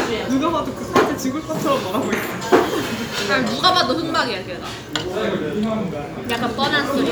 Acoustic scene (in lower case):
restaurant